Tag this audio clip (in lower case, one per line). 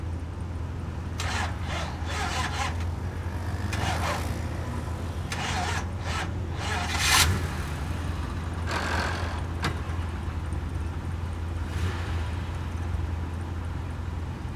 truck
vehicle
motor vehicle (road)